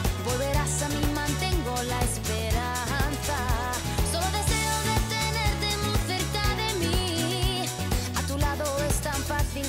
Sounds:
music

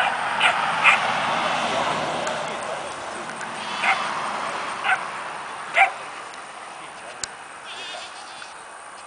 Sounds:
speech
bleat
sheep

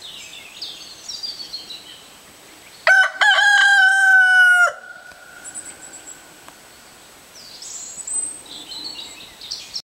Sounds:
bird vocalization

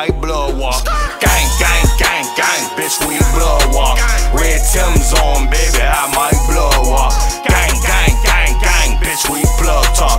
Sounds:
music

